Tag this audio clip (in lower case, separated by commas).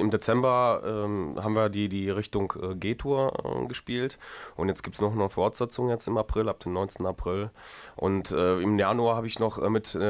speech